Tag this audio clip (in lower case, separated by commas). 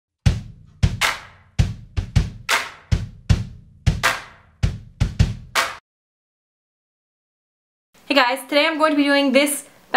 music, speech